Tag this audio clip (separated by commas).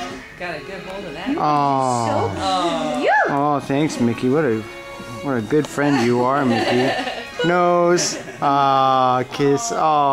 Speech, Music